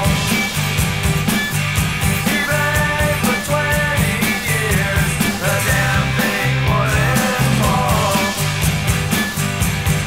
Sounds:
Music

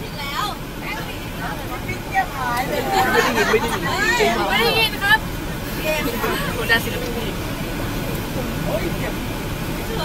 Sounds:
Speech

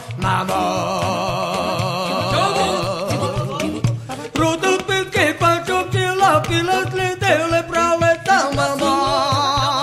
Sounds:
Music

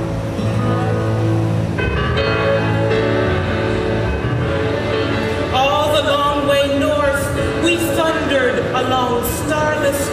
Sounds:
Music, Speech

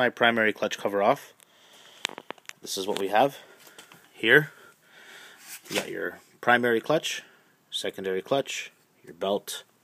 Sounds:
Speech

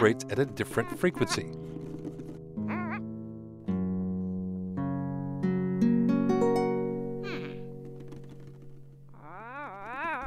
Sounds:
Music, Plucked string instrument, Musical instrument, Guitar, Speech

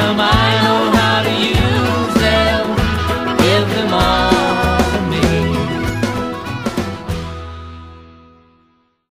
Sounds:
Christian music, Music

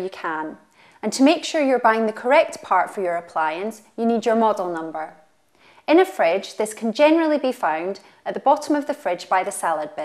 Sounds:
Speech

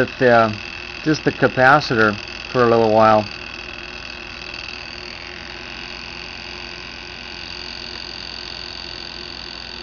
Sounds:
Speech, inside a small room

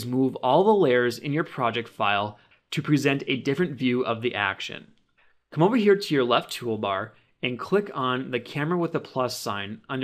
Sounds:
Speech

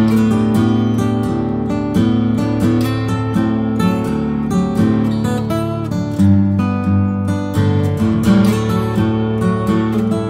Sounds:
Music

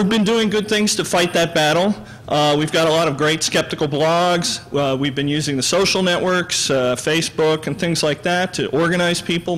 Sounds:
Speech

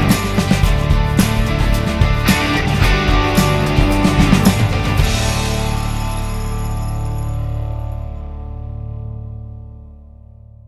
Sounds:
Music

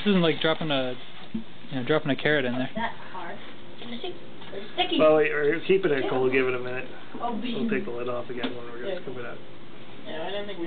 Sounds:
Speech

